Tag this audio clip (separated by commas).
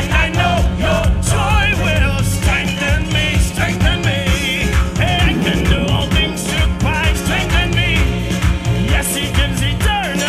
Ska, Music, Singing